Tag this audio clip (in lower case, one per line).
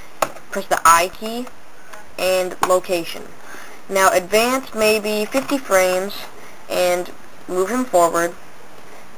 speech